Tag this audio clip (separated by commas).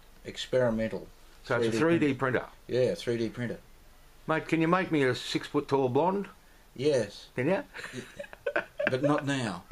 Speech